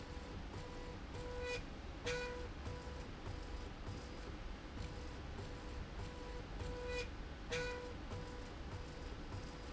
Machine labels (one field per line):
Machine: slide rail